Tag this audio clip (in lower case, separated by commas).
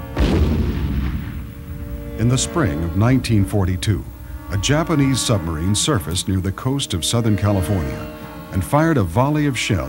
music, speech